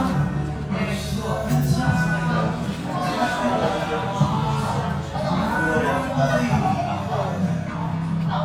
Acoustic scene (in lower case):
cafe